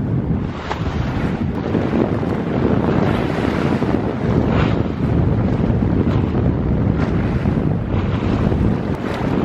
Wind blows hard and water splashes